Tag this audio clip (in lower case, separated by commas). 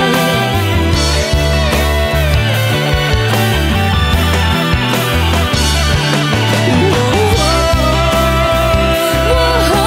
rock music, music, theme music